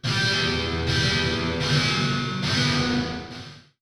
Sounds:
music, guitar, musical instrument, plucked string instrument

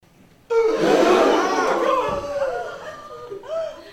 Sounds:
breathing, gasp, respiratory sounds

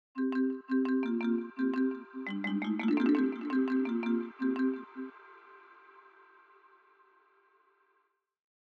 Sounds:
xylophone, musical instrument, music, percussion, mallet percussion

